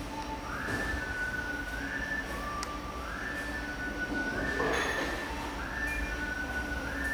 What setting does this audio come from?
cafe